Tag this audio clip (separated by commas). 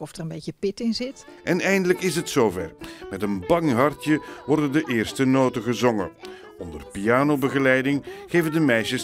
Tender music, Music, Speech